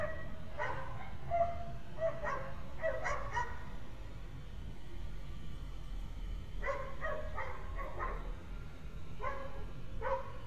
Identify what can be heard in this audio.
dog barking or whining